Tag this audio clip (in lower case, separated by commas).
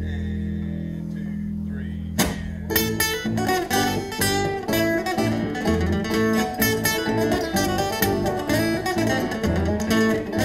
music, rhythm and blues, blues